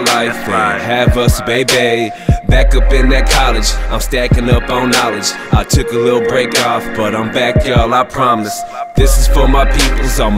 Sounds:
music

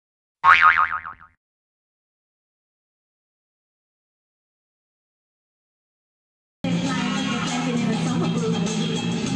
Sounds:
silence, music, inside a large room or hall

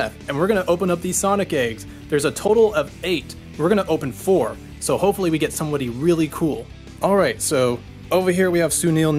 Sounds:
speech, music

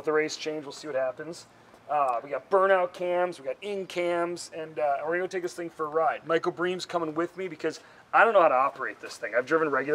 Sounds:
speech

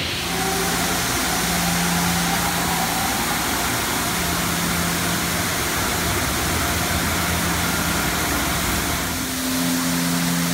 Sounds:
vehicle, car

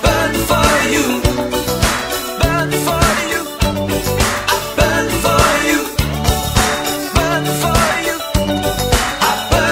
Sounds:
music

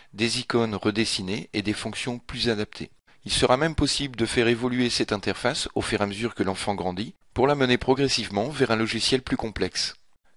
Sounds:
speech

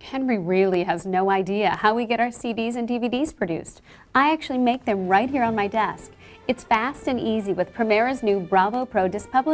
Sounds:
speech, music

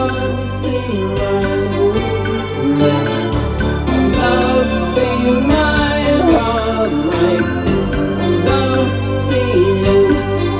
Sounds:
inside a large room or hall, music

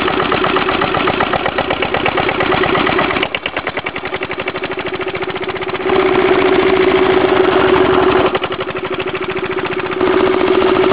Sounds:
engine

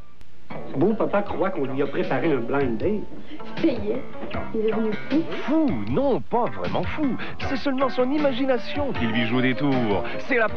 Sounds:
speech, music

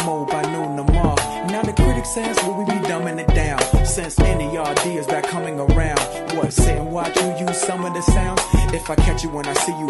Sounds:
music, tap

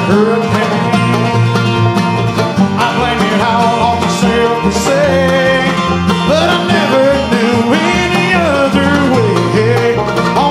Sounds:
country, music

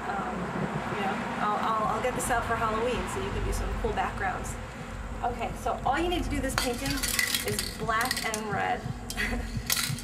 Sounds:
speech

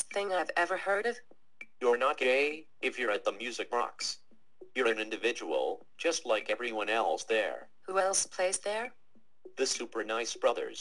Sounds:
speech

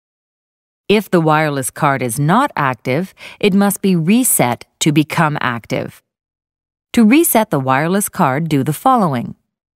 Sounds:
speech

